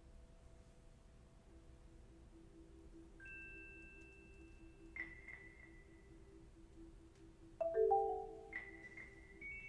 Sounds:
xylophone, music, musical instrument

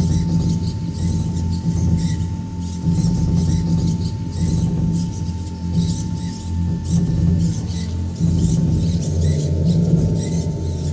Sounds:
electronica, music

